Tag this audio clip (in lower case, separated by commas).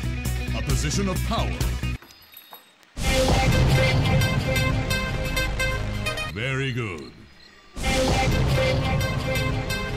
speech, music